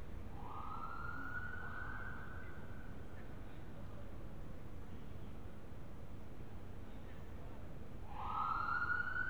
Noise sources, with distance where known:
siren, far

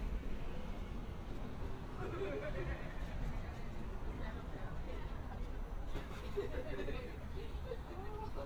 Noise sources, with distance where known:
person or small group talking, near

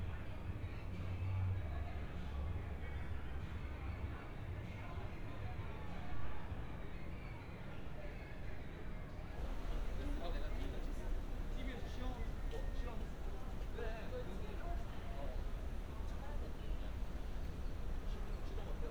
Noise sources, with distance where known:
person or small group talking, far

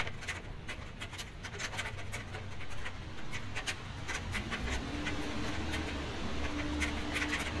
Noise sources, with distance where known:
engine of unclear size, near

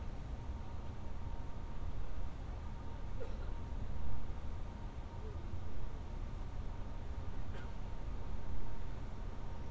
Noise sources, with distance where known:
background noise

